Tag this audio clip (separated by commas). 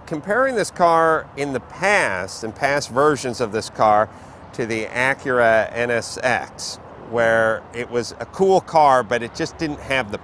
Speech